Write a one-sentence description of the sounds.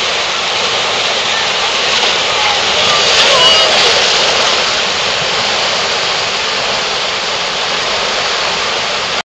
There is a running stream and people talking